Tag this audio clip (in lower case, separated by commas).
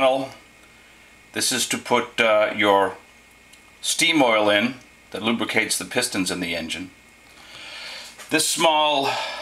speech